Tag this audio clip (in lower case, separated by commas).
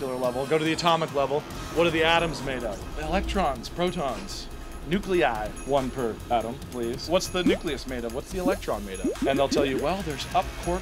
speech, music